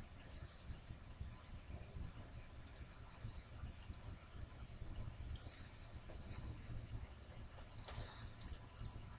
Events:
0.0s-9.1s: mechanisms
2.6s-2.8s: clicking
5.3s-5.6s: clicking
6.0s-6.1s: generic impact sounds
6.3s-6.5s: scrape
7.5s-7.6s: clicking
7.8s-8.0s: clicking
7.9s-8.0s: generic impact sounds
7.9s-8.2s: scrape
8.4s-8.6s: clicking
8.8s-8.9s: clicking

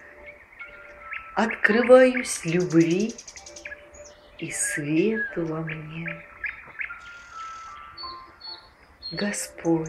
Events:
0.0s-0.9s: bird vocalization
0.0s-9.8s: music
1.0s-1.2s: bird vocalization
1.3s-3.1s: woman speaking
1.4s-1.6s: bird vocalization
1.7s-1.9s: bird vocalization
2.1s-3.8s: bird vocalization
3.9s-5.4s: bird vocalization
4.4s-5.2s: woman speaking
5.3s-6.2s: woman speaking
5.4s-5.5s: tick
5.6s-5.8s: bird vocalization
6.0s-6.2s: bird vocalization
6.4s-7.0s: bird vocalization
7.0s-7.8s: mechanisms
7.9s-8.3s: bird vocalization
8.4s-8.9s: bird vocalization
9.0s-9.3s: bird vocalization
9.1s-9.4s: woman speaking
9.6s-9.8s: woman speaking
9.6s-9.8s: bird vocalization

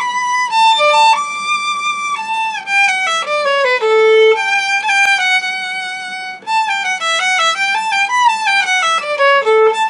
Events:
0.0s-9.8s: music

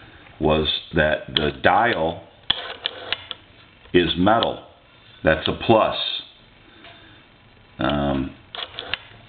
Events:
0.0s-9.2s: background noise
0.4s-0.7s: man speaking
0.9s-2.2s: man speaking
1.3s-1.4s: tick
1.9s-2.0s: tick
2.5s-3.3s: telephone
3.9s-4.6s: man speaking
4.4s-4.5s: tick
5.2s-6.2s: man speaking
5.4s-5.5s: tick
6.8s-7.0s: generic impact sounds
6.8s-7.2s: breathing
7.8s-8.3s: man speaking
7.8s-7.9s: tick
8.5s-9.0s: telephone

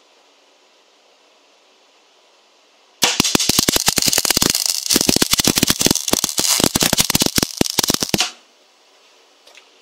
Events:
0.0s-9.8s: mechanisms
3.0s-8.4s: crackle
9.4s-9.6s: generic impact sounds
9.8s-9.8s: generic impact sounds

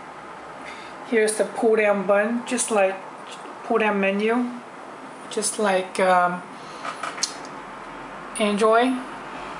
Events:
0.0s-9.5s: mechanisms
0.6s-1.0s: breathing
1.0s-3.0s: female speech
3.2s-3.5s: generic impact sounds
3.6s-4.6s: female speech
5.3s-6.4s: female speech
6.6s-7.0s: breathing
6.8s-7.5s: generic impact sounds
8.4s-9.0s: female speech

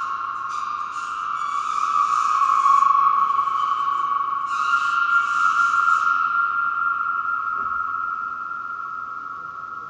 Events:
0.0s-9.8s: background noise
0.0s-9.8s: music
0.0s-9.8s: reverberation
7.5s-7.7s: tap

